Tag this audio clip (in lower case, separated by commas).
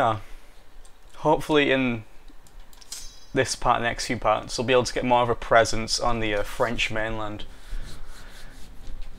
speech